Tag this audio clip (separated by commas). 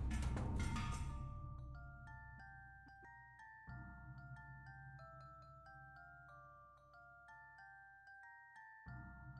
xylophone, Glockenspiel, Mallet percussion